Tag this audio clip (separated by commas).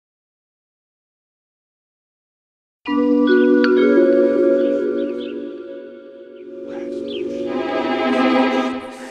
Speech, Music